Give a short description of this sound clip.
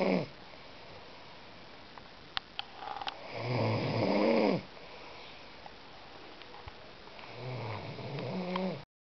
Someone snoring and something adjusting